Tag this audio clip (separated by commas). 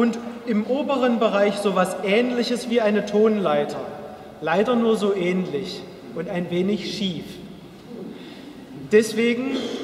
Speech